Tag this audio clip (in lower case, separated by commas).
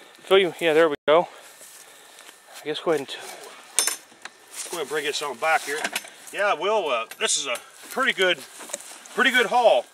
speech